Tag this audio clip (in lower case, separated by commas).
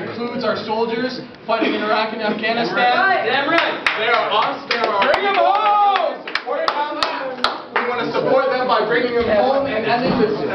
speech, narration, man speaking